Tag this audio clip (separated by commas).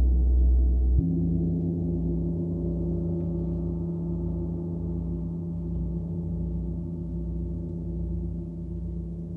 playing gong